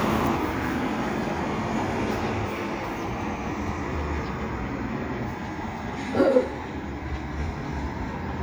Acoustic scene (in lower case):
street